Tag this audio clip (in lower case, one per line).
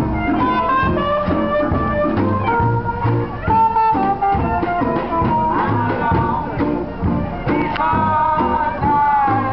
blues
music